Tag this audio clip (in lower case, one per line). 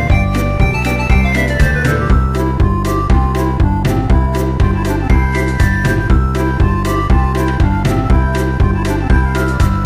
music